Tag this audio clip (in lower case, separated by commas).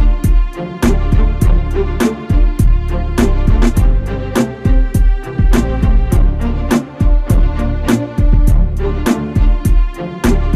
music